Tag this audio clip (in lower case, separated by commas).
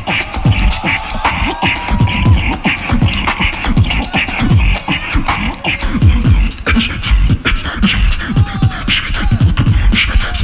beat boxing